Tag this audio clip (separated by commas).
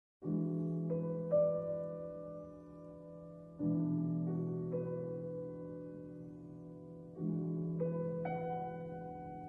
Music, Harp